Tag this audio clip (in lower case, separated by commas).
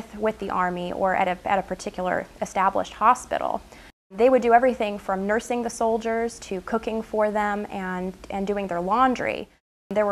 speech, woman speaking